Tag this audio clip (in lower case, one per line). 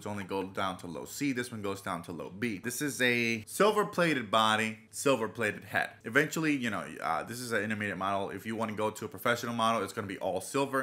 speech